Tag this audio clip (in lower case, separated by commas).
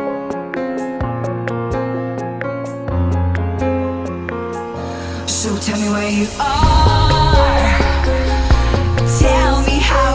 music